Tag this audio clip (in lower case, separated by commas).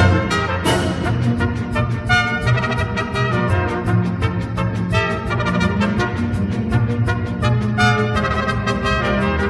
playing bugle